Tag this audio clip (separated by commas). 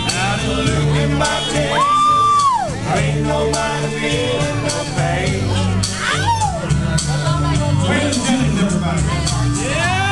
Male singing, Music